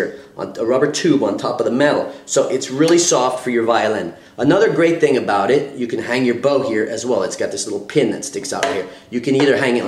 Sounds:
speech

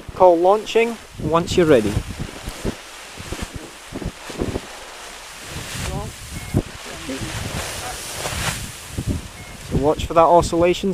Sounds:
outside, rural or natural, speech, rustling leaves

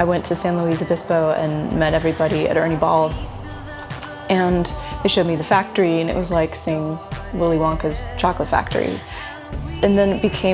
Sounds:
musical instrument, music, speech

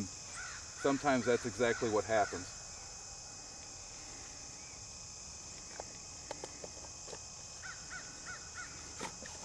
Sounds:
animal, speech, outside, rural or natural

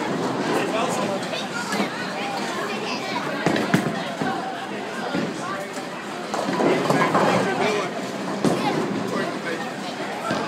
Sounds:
striking bowling

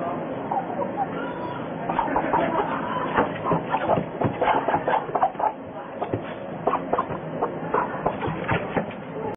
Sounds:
bow-wow, domestic animals, animal, dog

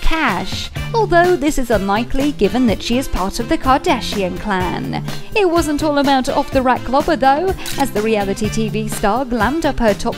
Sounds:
speech, music

